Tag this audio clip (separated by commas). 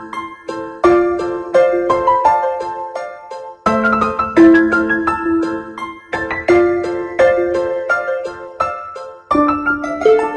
Music, Blues